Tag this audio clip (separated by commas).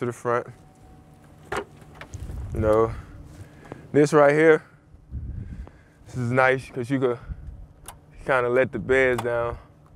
Speech